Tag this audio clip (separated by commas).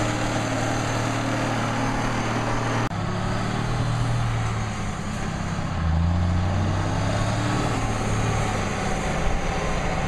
Truck, Vehicle